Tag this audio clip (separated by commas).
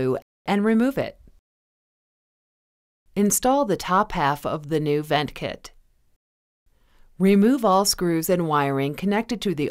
Speech